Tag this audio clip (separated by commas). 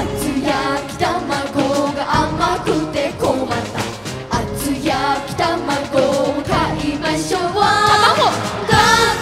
Music